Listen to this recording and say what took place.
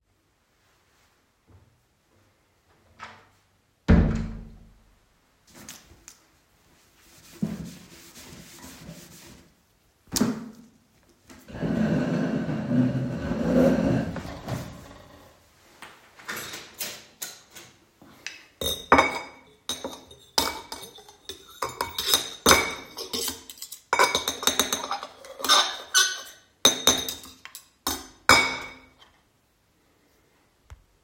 I closed the kitchen door and started wiping the desk with a towel. After that I moved the chair to the desk and sat down. Then i grabbed cutlery and dishes and ate a snack.